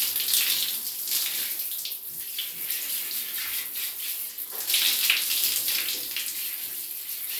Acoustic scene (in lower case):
restroom